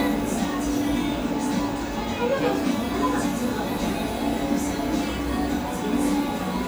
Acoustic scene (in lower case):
cafe